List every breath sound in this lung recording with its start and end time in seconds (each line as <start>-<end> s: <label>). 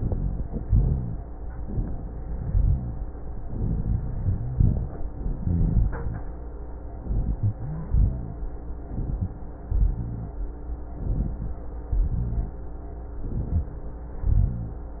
0.00-0.63 s: inhalation
0.00-0.63 s: rhonchi
0.65-1.27 s: exhalation
0.65-1.27 s: rhonchi
1.63-2.26 s: inhalation
2.35-3.09 s: exhalation
2.35-3.09 s: rhonchi
3.47-4.52 s: inhalation
3.47-4.52 s: rhonchi
4.55-5.16 s: exhalation
4.55-5.16 s: rhonchi
5.41-6.28 s: inhalation
5.41-6.28 s: rhonchi
7.02-7.89 s: inhalation
7.02-7.89 s: rhonchi
7.95-8.50 s: exhalation
7.95-8.50 s: rhonchi
8.90-9.60 s: inhalation
9.70-10.40 s: exhalation
9.70-10.40 s: rhonchi
11.00-11.71 s: inhalation
11.91-12.62 s: exhalation
11.91-12.62 s: rhonchi
13.21-13.91 s: inhalation
14.12-14.82 s: exhalation
14.12-14.82 s: rhonchi